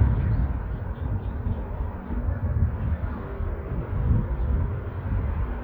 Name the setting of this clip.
street